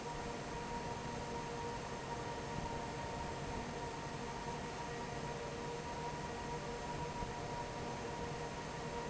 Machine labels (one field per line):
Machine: fan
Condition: normal